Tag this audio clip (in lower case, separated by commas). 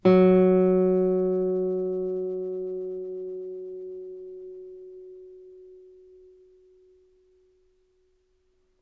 plucked string instrument, musical instrument, guitar, music